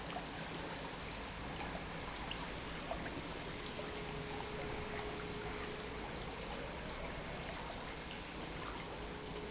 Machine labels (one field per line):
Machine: pump